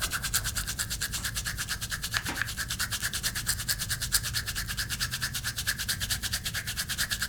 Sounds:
home sounds

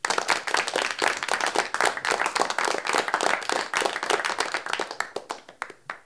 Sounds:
human group actions
applause

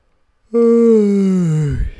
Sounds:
human voice

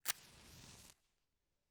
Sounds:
fire

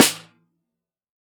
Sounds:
percussion
drum
music
snare drum
musical instrument

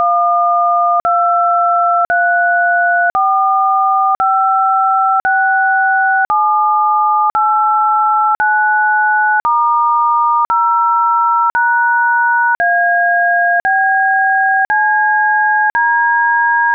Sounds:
alarm
telephone

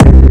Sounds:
bass drum
music
percussion
drum
musical instrument

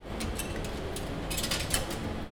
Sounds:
coin (dropping)
home sounds

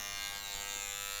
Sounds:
alarm

